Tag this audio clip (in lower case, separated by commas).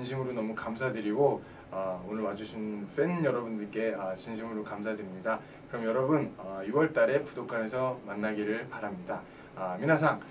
speech